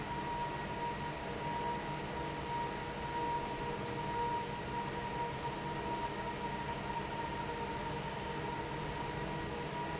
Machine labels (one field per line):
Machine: fan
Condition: normal